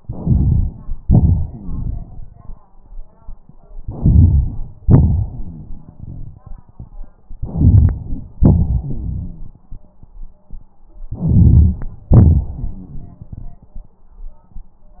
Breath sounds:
Inhalation: 0.00-1.04 s, 3.81-4.84 s, 7.36-8.37 s, 11.12-12.12 s
Exhalation: 1.06-2.66 s, 4.84-7.00 s, 8.42-9.70 s, 12.16-13.95 s
Wheeze: 1.51-1.84 s, 5.28-5.67 s, 8.82-9.52 s, 12.57-13.17 s

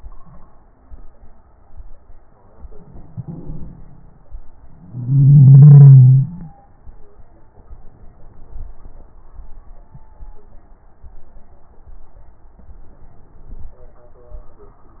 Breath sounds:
Inhalation: 7.55-8.67 s, 12.60-13.71 s

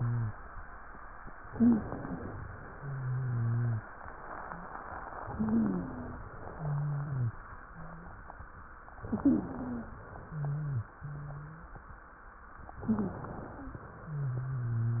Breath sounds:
Inhalation: 1.42-2.44 s, 5.20-6.30 s, 8.96-10.00 s, 12.64-13.82 s
Exhalation: 2.64-5.04 s, 6.32-8.96 s, 10.00-12.00 s, 13.82-15.00 s
Wheeze: 0.00-0.34 s, 1.46-1.84 s, 2.70-3.86 s, 5.30-6.18 s, 6.54-7.40 s, 7.70-8.22 s, 9.04-9.92 s, 10.26-10.94 s, 10.98-11.76 s, 12.82-13.20 s, 14.02-15.00 s

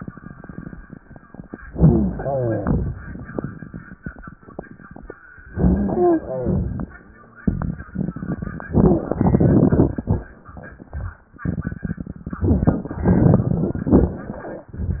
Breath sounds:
Inhalation: 1.67-2.52 s, 5.50-6.36 s
Exhalation: 2.60-3.11 s, 6.41-6.93 s
Wheeze: 5.96-6.24 s
Rhonchi: 1.69-2.56 s, 5.52-6.40 s
Crackles: 2.60-3.11 s, 6.41-6.93 s

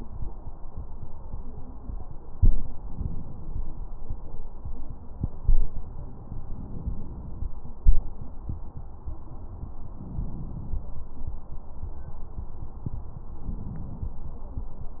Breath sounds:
Inhalation: 2.83-3.85 s, 6.45-7.46 s, 9.89-10.91 s, 13.45-14.18 s
Crackles: 2.81-3.83 s, 13.45-14.18 s

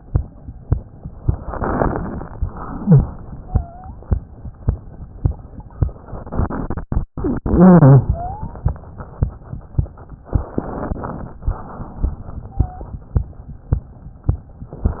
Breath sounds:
Wheeze: 3.39-3.94 s, 8.09-8.63 s, 12.49-13.03 s

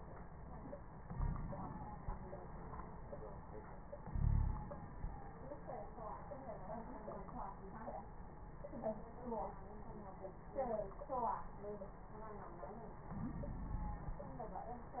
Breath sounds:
Inhalation: 1.11-1.58 s, 4.05-4.67 s, 13.06-14.18 s
Wheeze: 1.11-1.58 s, 4.05-4.67 s, 13.06-14.18 s

